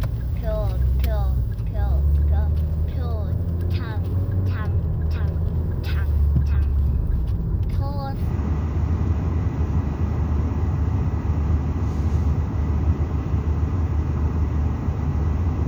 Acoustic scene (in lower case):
car